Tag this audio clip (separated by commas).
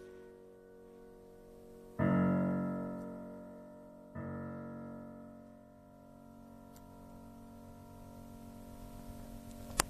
Music